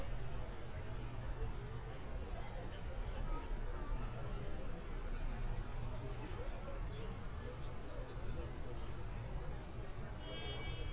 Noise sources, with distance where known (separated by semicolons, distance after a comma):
car horn, far; person or small group talking